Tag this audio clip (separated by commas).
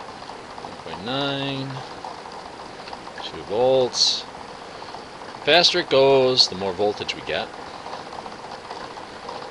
Speech, inside a small room